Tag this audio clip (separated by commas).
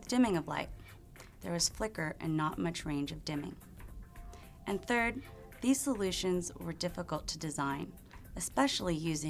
Speech